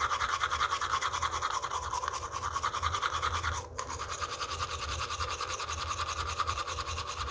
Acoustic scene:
restroom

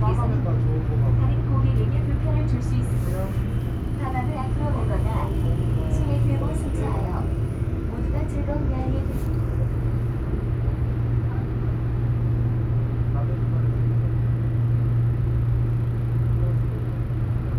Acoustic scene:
subway train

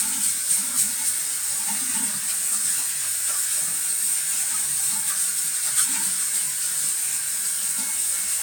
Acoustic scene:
restroom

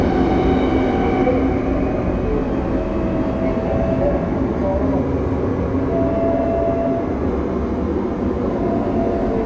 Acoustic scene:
subway train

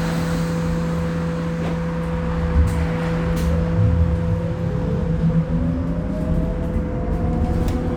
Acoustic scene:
bus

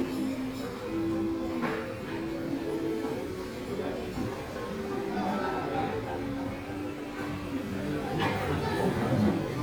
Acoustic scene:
crowded indoor space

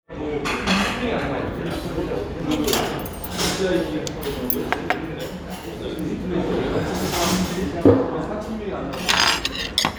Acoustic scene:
restaurant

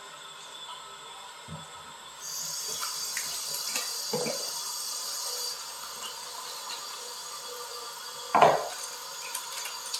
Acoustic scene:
restroom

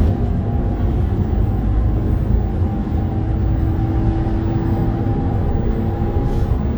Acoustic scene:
bus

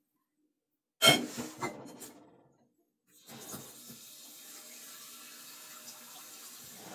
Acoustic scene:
kitchen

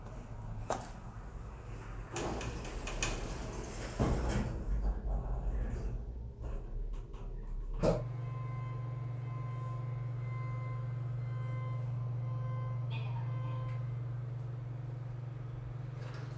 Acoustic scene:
elevator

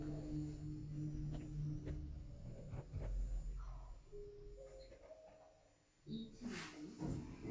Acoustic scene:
elevator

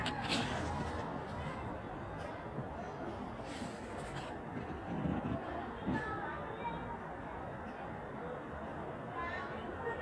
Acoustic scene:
residential area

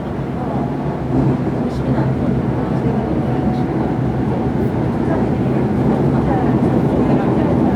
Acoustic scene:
subway train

